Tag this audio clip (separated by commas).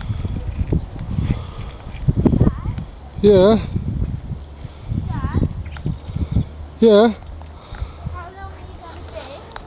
Speech